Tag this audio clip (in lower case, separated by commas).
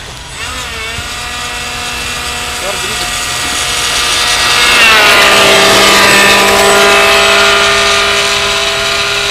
airplane, speech, aircraft, outside, urban or man-made